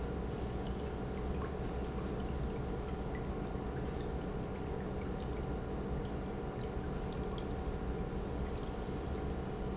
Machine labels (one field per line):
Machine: pump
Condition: normal